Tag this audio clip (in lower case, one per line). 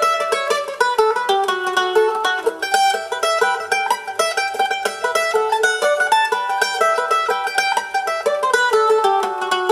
pizzicato